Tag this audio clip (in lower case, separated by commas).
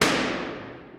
explosion, boom